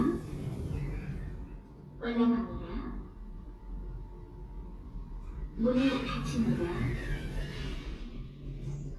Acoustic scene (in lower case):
elevator